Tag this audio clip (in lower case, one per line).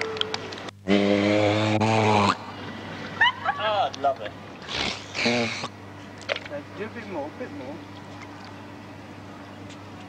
speech